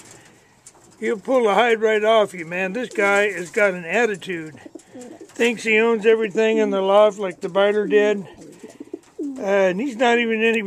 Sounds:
speech

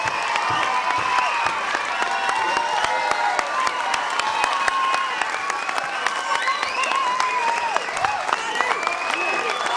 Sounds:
speech

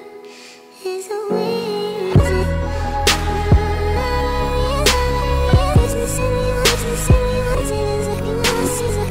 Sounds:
music

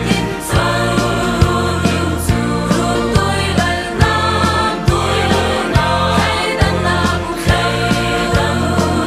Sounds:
music, choir, christian music, inside a large room or hall, singing

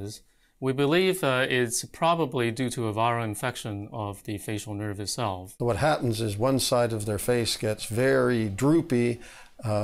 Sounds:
speech

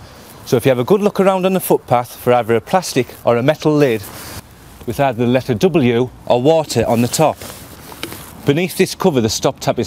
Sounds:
speech

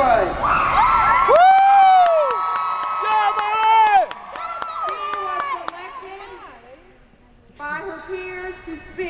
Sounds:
speech, monologue, woman speaking, male speech

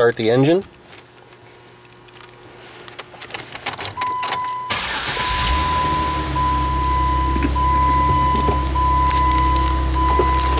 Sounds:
speech, vehicle

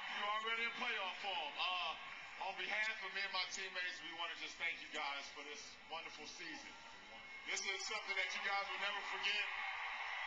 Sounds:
male speech, speech, narration

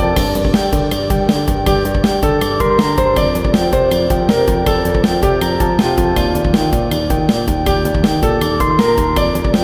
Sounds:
music

